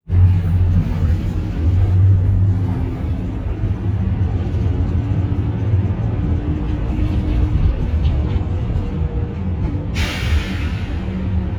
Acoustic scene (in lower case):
bus